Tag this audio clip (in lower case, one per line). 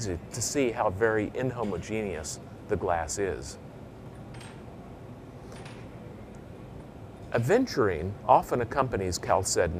speech